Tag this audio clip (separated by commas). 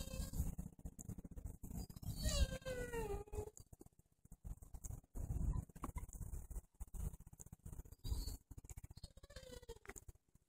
pets, outside, rural or natural, Dog, Animal